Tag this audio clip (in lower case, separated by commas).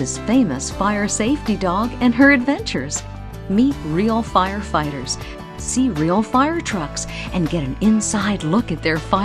music, speech